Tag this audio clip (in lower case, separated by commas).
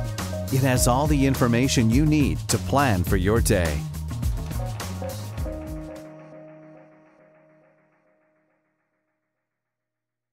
speech, music